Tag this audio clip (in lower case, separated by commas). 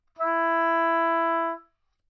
woodwind instrument, musical instrument, music